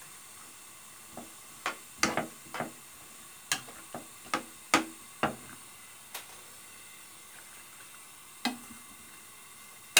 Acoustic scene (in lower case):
kitchen